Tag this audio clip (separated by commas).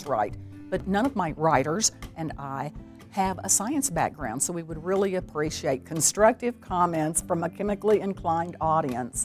Speech, Music